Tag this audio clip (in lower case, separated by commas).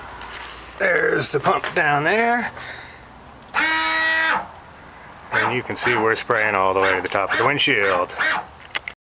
speech